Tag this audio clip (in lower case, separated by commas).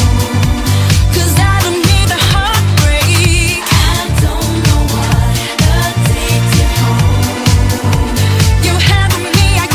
pop music, music